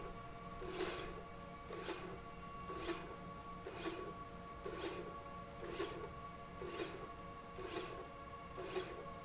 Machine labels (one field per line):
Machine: slide rail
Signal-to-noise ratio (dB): 6 dB